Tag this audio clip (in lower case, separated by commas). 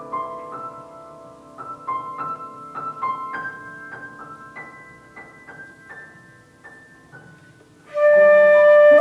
flute, playing flute, musical instrument, music